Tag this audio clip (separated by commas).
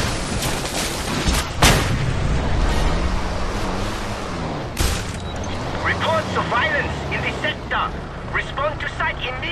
Truck, Speech